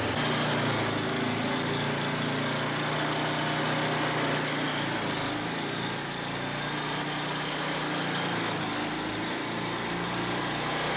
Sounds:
Engine

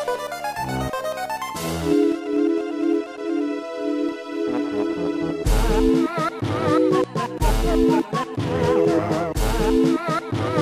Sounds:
Music

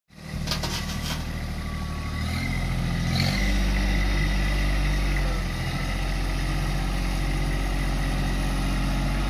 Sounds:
tractor digging

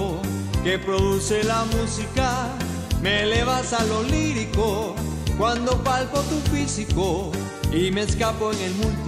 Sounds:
Music of Latin America, Music, Flamenco

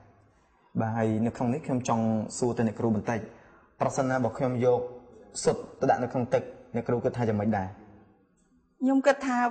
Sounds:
Speech

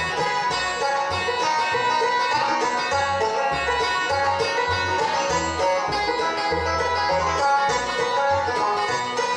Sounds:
Music

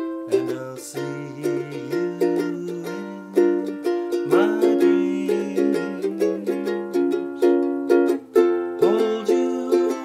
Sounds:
inside a small room, Music

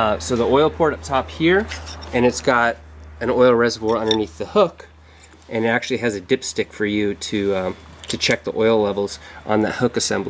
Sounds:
Speech

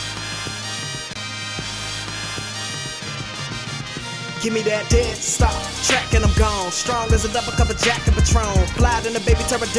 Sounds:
Music, Pop music

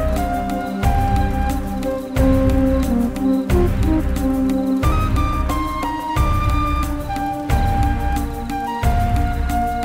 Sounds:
Soundtrack music, Music

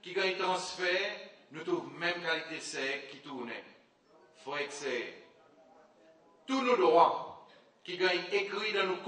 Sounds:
Speech, man speaking

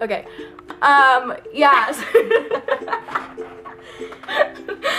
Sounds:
Music, Speech

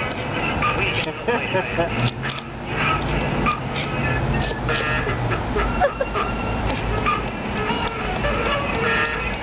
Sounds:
Speech

